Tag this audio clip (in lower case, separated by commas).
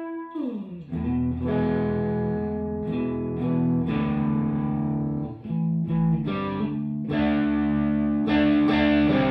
music, electric guitar, distortion